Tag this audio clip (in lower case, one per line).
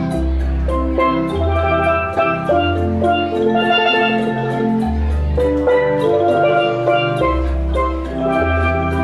playing steelpan